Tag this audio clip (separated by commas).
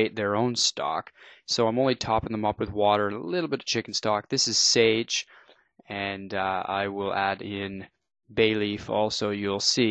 Speech